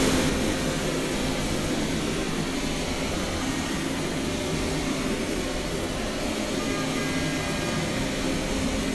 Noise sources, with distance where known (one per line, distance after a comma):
car horn, far